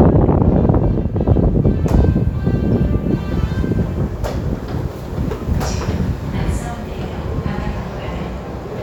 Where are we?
in a subway station